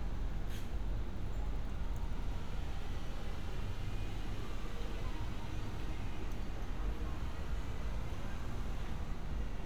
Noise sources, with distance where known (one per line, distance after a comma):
medium-sounding engine